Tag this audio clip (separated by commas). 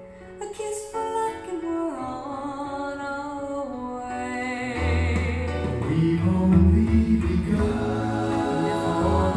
Music